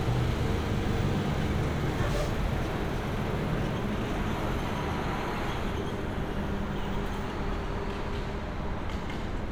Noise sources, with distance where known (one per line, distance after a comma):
unidentified impact machinery